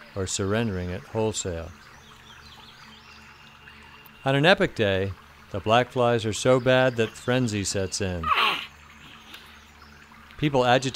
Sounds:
Bird vocalization, Speech

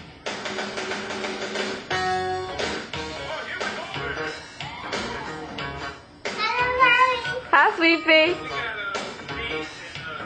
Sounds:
Speech, Music, Male singing

